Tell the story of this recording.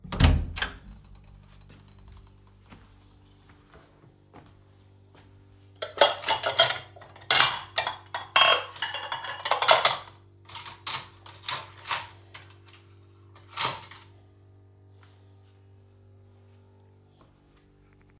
I opened the kitchen door, walked to the dishes, picked them up, and sorted them properly.